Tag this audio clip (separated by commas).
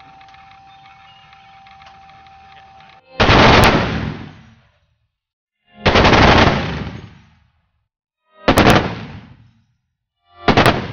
machine gun shooting